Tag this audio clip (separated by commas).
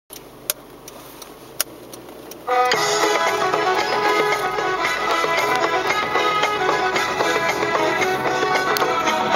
Vehicle